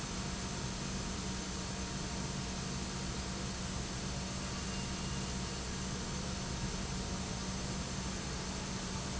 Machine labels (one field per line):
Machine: pump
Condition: normal